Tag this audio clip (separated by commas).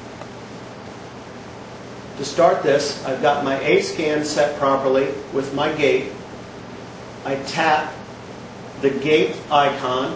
inside a small room, Speech